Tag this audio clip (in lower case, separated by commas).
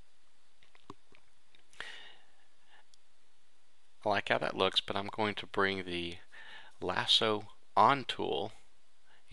speech